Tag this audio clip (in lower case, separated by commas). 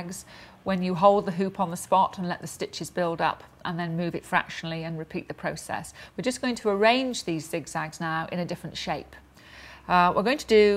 speech